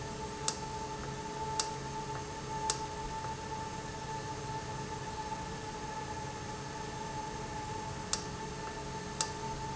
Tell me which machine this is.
valve